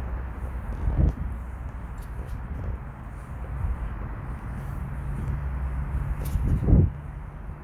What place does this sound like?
residential area